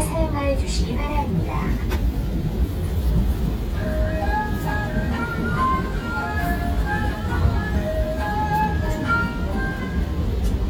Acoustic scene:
subway train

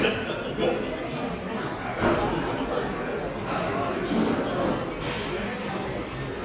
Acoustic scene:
cafe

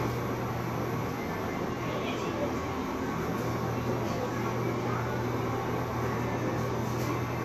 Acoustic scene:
cafe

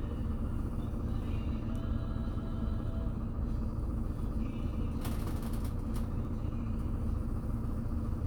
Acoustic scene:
bus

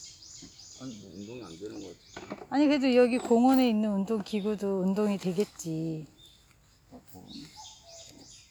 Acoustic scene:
park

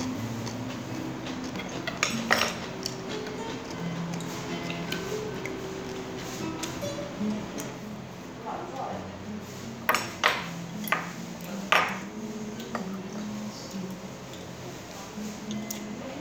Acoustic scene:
restaurant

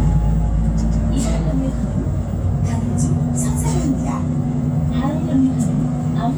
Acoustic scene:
bus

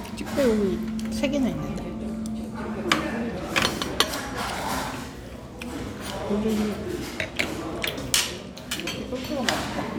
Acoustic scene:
restaurant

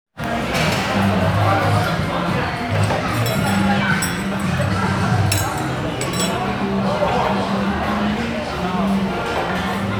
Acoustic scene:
restaurant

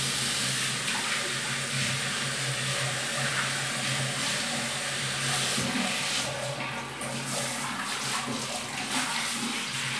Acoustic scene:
restroom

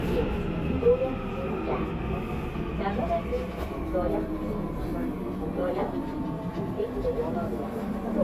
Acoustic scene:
subway train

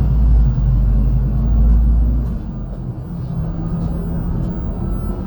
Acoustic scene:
bus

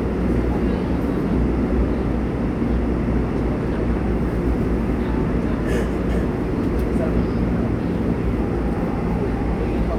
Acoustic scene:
subway train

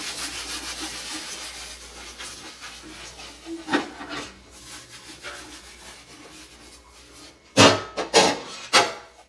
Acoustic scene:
kitchen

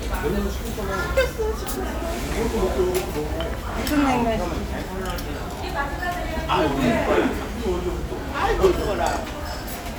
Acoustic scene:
restaurant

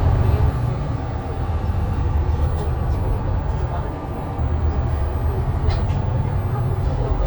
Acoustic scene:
bus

